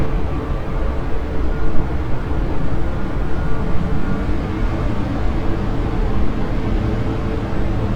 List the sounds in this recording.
large-sounding engine